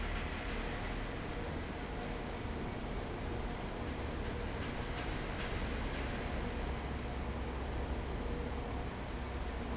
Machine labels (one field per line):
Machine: fan